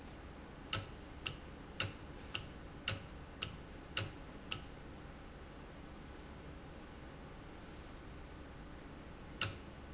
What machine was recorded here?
valve